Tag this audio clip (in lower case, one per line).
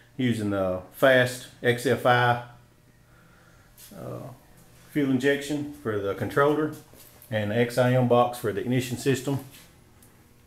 speech